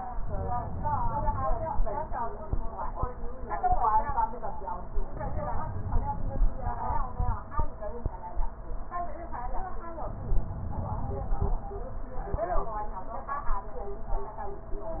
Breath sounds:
5.10-6.74 s: inhalation
10.02-11.66 s: inhalation

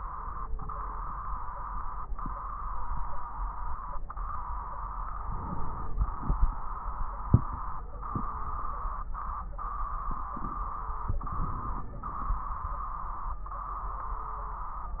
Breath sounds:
5.24-6.65 s: inhalation
5.24-6.65 s: crackles
11.10-12.51 s: inhalation
11.10-12.51 s: crackles

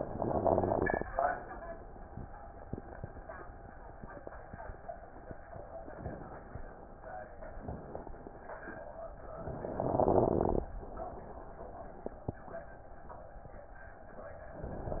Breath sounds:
0.00-1.06 s: inhalation
0.00-1.06 s: crackles
9.58-10.64 s: inhalation
9.58-10.64 s: crackles

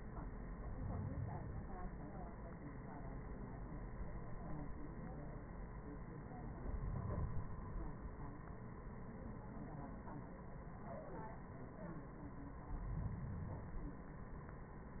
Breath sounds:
0.59-1.71 s: inhalation
6.55-8.05 s: inhalation
12.74-14.06 s: inhalation

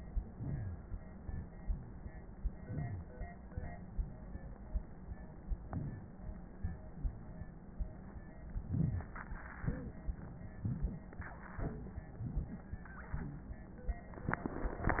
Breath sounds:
0.32-0.97 s: inhalation
2.56-3.19 s: inhalation
5.62-6.19 s: inhalation
8.58-9.17 s: inhalation

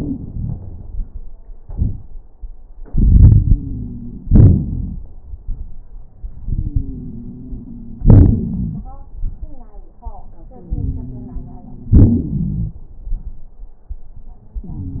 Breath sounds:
2.81-4.26 s: inhalation
3.23-4.27 s: wheeze
4.27-5.03 s: exhalation
4.28-5.05 s: crackles
6.45-8.03 s: inhalation
6.50-8.86 s: wheeze
8.04-8.90 s: exhalation
10.55-11.93 s: inhalation
10.56-12.79 s: wheeze
11.95-12.79 s: exhalation

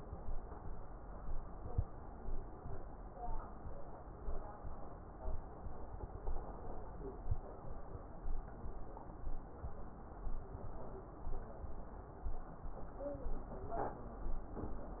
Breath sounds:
1.56-1.88 s: inhalation

